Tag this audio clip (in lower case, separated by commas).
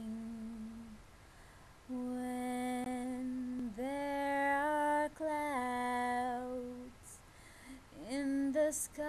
female singing